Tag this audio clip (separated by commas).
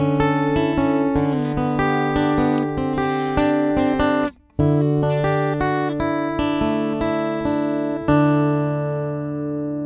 Musical instrument, Acoustic guitar, Plucked string instrument, Music, Guitar